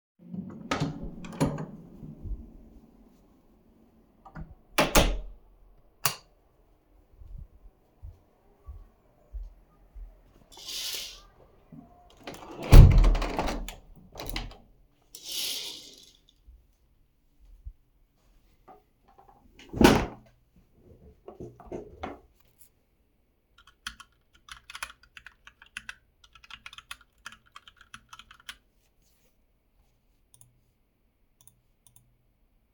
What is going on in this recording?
I opened the door, entered the room, closed the door, turned on the light, walked to the window, removed the curtains, closed the window, closed the curtains, sat down in a chair, and began typing on the keyboard, clicking the mouse a couple of times.